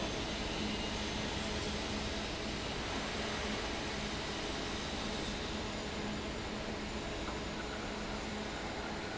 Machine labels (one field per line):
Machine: fan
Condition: normal